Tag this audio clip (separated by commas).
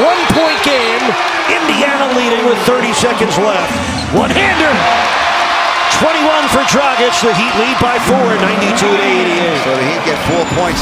Speech, Basketball bounce